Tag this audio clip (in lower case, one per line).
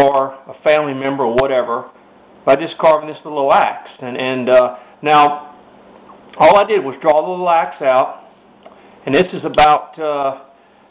speech